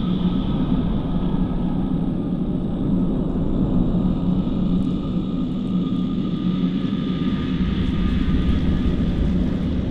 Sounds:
ambient music, music

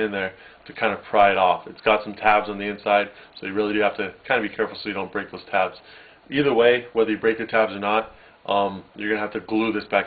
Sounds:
speech

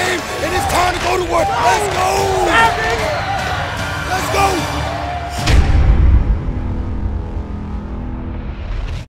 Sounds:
speech, music

